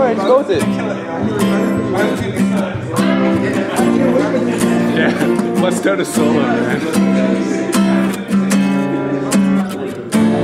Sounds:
music, speech

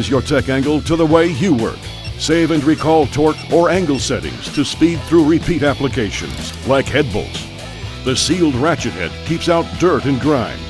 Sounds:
music, tools, speech

